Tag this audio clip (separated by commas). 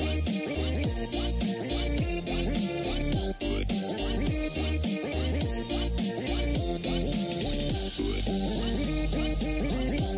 Music